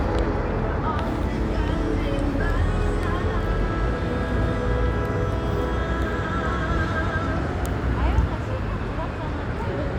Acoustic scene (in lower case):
street